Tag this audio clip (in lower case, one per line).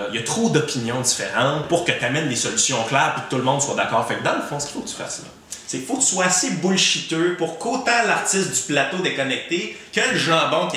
speech